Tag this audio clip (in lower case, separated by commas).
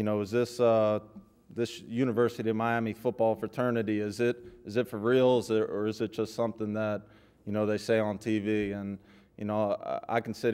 narration, speech, male speech